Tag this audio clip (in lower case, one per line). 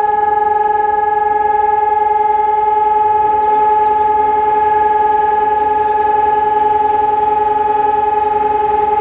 civil defense siren
siren